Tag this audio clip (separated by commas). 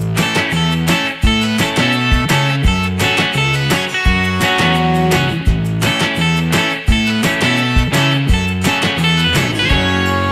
Music